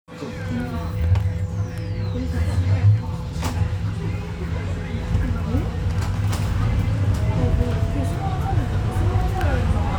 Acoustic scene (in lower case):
bus